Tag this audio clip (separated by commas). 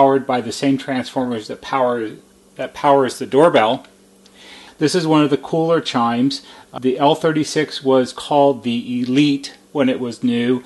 Speech